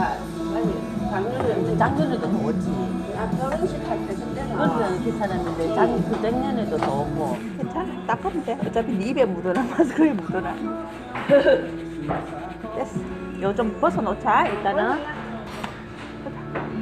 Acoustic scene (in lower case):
restaurant